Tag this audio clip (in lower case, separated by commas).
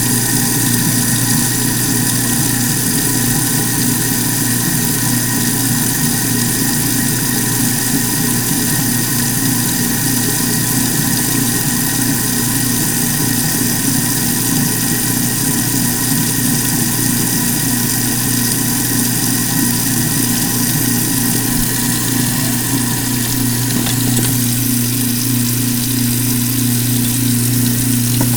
sink (filling or washing), domestic sounds